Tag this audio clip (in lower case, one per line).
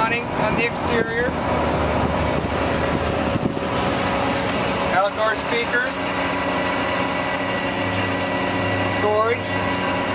speech